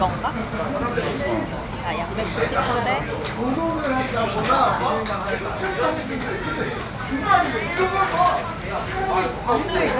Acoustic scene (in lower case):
restaurant